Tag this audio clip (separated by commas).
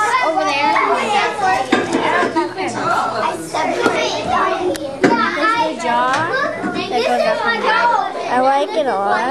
Speech